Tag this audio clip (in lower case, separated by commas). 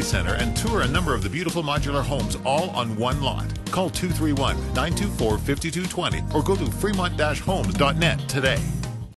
speech, music